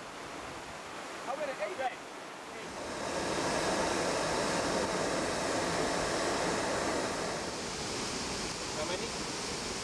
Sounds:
speech

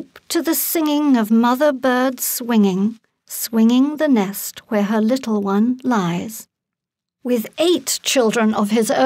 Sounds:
speech

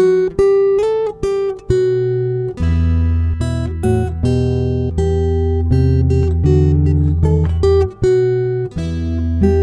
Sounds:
music
strum
musical instrument
plucked string instrument
acoustic guitar
guitar

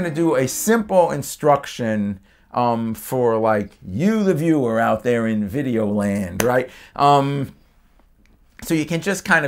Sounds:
speech

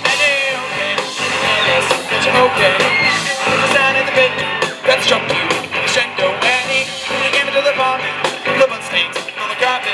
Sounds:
music
male singing

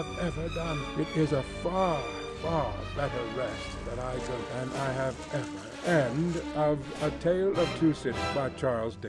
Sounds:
speech
music

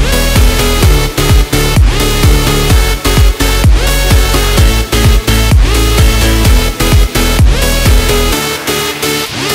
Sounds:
electronic dance music
music

